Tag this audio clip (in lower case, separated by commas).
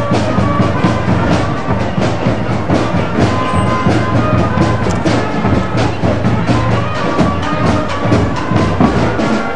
music